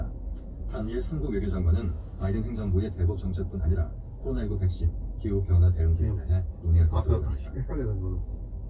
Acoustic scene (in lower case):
car